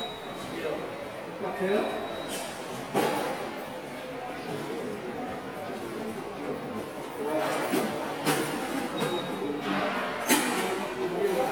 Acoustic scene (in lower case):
subway station